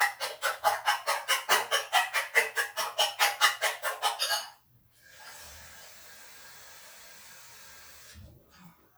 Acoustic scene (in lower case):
kitchen